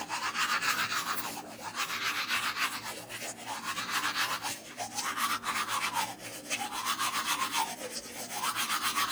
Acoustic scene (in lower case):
restroom